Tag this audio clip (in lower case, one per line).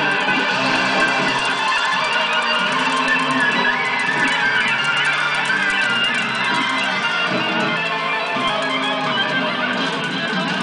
music